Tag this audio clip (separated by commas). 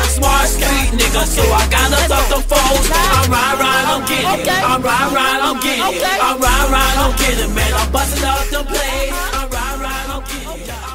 Hip hop music, Music